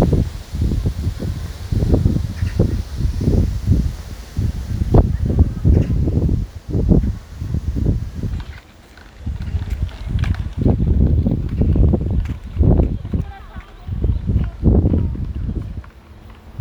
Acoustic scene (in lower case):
residential area